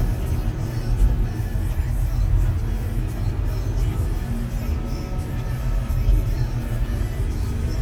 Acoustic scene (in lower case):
car